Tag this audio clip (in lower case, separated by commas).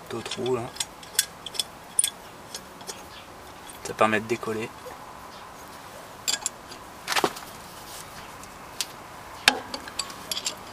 speech